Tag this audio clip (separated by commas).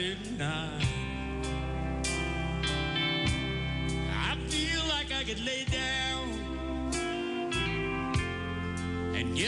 fiddle, Music, Musical instrument